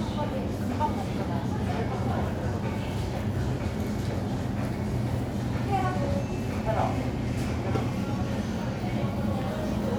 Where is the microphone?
in a crowded indoor space